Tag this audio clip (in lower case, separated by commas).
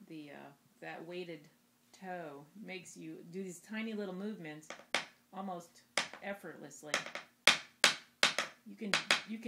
speech